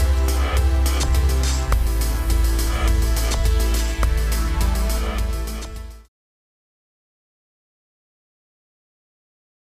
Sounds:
music

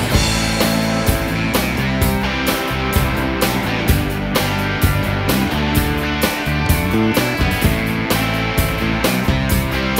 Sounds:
music, plucked string instrument, bass guitar, musical instrument

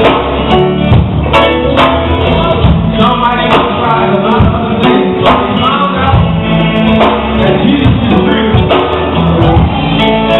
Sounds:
male singing, music

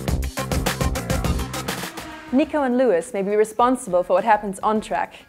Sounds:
music, speech

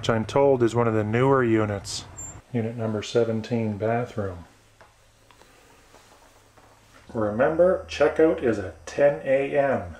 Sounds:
speech, inside a small room

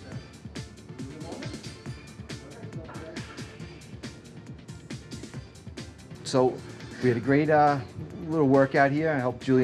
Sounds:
speech, music

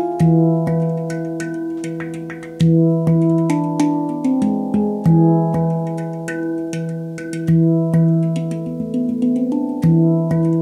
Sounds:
music, sound effect

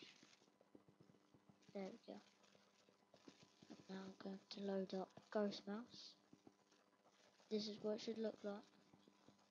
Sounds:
speech

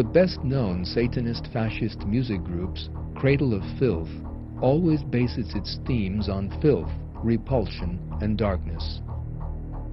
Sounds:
speech, soundtrack music, music

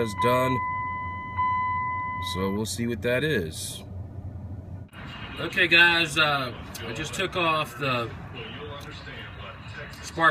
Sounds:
speech

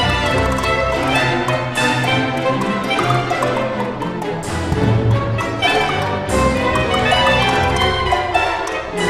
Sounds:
music, wood block

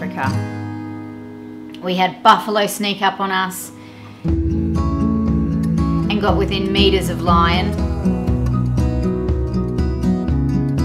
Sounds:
music, speech

